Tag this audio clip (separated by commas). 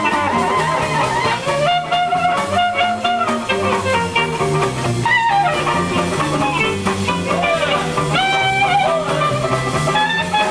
Swing music, Music